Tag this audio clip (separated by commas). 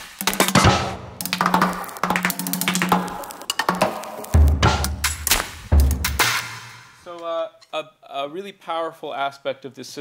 Music, Percussion, Speech